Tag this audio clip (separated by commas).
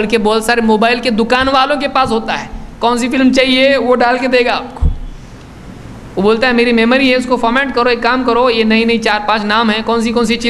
Speech